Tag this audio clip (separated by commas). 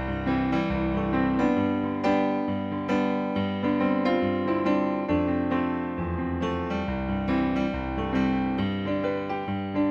Music